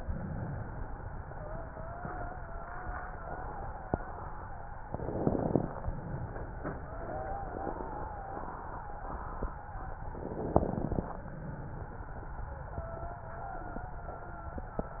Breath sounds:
1.29-4.76 s: wheeze
4.88-5.83 s: inhalation
6.83-10.30 s: wheeze
10.04-10.99 s: inhalation
12.69-15.00 s: wheeze

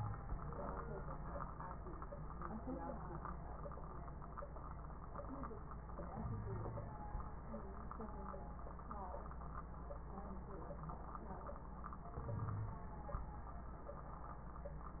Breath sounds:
6.22-6.94 s: inhalation
6.22-6.94 s: wheeze
12.20-12.81 s: inhalation
12.20-12.81 s: wheeze

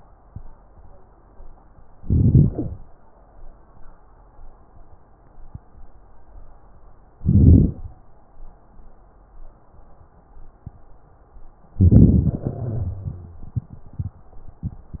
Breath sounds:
2.00-2.77 s: inhalation
7.16-7.94 s: inhalation
11.75-12.44 s: inhalation
12.43-13.51 s: exhalation
12.43-13.51 s: wheeze

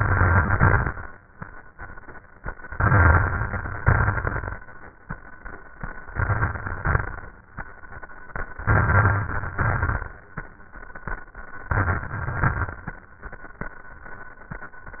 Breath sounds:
0.00-1.03 s: inhalation
0.00-1.03 s: crackles
2.77-3.80 s: inhalation
2.77-3.80 s: crackles
3.84-4.65 s: exhalation
3.84-4.65 s: crackles
6.03-6.83 s: crackles
6.04-6.85 s: inhalation
6.83-7.36 s: exhalation
6.85-7.38 s: crackles
8.64-9.54 s: inhalation
8.64-9.54 s: crackles
9.55-10.15 s: exhalation
9.55-10.15 s: crackles
11.70-12.29 s: inhalation
11.70-12.29 s: crackles
12.30-12.89 s: exhalation
12.30-12.89 s: crackles

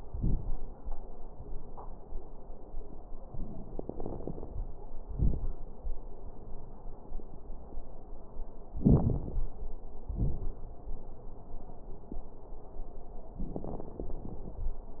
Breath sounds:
3.28-4.78 s: inhalation
3.28-4.78 s: crackles
5.05-5.54 s: exhalation
5.05-5.54 s: crackles
8.73-9.52 s: inhalation
8.73-9.52 s: crackles
10.09-10.59 s: exhalation
10.09-10.59 s: crackles
13.40-14.70 s: inhalation
13.40-14.70 s: crackles

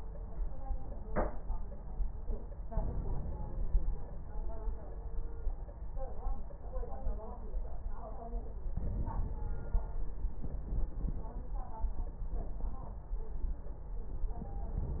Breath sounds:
2.70-4.29 s: inhalation
8.79-10.37 s: inhalation

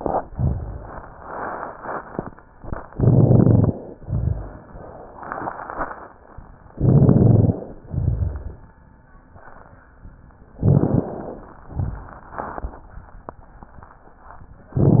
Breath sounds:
2.92-3.91 s: inhalation
2.92-3.91 s: crackles
3.95-4.65 s: exhalation
3.95-4.65 s: exhalation
3.95-4.65 s: crackles
6.74-7.76 s: inhalation
6.74-7.76 s: crackles
7.87-8.67 s: crackles
10.61-11.63 s: inhalation
11.74-12.18 s: crackles
11.74-12.77 s: exhalation

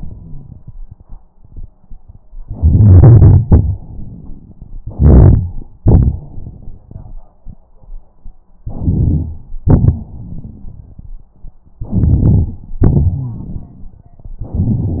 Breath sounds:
2.42-3.41 s: inhalation
3.47-3.80 s: exhalation
4.80-5.66 s: inhalation
5.81-7.32 s: exhalation
8.65-9.47 s: inhalation
8.65-9.47 s: crackles
9.65-10.09 s: exhalation
11.82-12.66 s: inhalation
12.78-13.98 s: exhalation
13.13-13.46 s: wheeze
14.48-15.00 s: inhalation

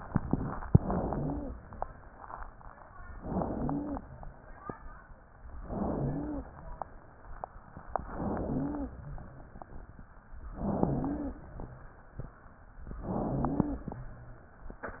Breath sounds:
0.63-1.54 s: inhalation
1.04-1.46 s: wheeze
3.19-4.10 s: inhalation
3.49-4.02 s: wheeze
5.60-6.51 s: inhalation
5.94-6.47 s: wheeze
8.03-8.94 s: inhalation
8.41-8.94 s: wheeze
10.55-11.46 s: inhalation
10.78-11.40 s: wheeze
13.04-13.95 s: inhalation
13.26-13.89 s: wheeze

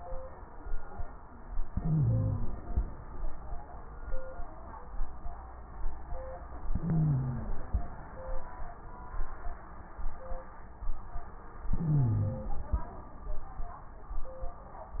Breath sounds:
1.65-2.82 s: inhalation
1.65-2.82 s: wheeze
6.66-7.83 s: inhalation
6.71-7.65 s: wheeze
11.69-12.62 s: wheeze
11.69-12.91 s: inhalation

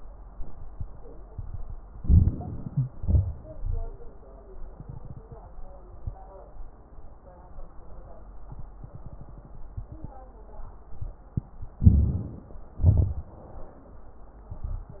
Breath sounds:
1.90-2.93 s: inhalation
1.90-2.93 s: crackles
2.94-3.96 s: exhalation
2.94-3.96 s: crackles
11.76-12.79 s: inhalation
11.76-12.79 s: crackles
12.80-13.42 s: exhalation
12.80-13.42 s: crackles

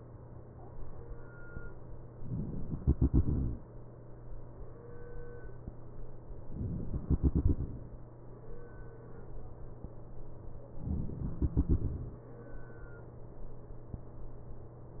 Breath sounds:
2.14-2.80 s: inhalation
2.80-4.03 s: exhalation
6.46-7.06 s: inhalation
7.06-7.72 s: exhalation
10.89-11.34 s: inhalation
11.34-12.33 s: exhalation

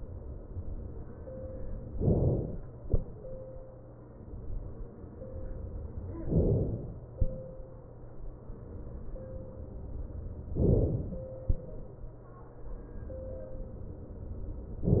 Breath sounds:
2.01-2.73 s: inhalation
6.33-7.04 s: inhalation
10.61-11.33 s: inhalation

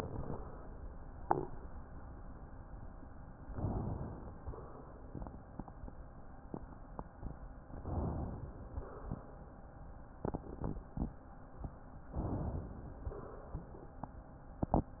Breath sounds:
3.54-4.40 s: inhalation
4.41-5.38 s: crackles
4.41-5.39 s: exhalation
7.76-8.72 s: inhalation
8.73-9.66 s: exhalation
12.13-13.04 s: inhalation
13.05-13.95 s: exhalation

